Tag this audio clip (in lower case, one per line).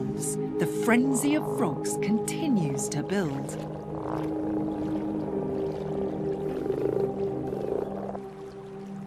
frog